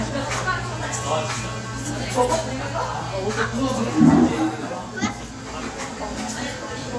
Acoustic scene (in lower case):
cafe